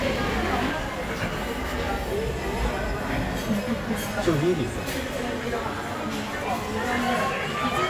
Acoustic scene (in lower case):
crowded indoor space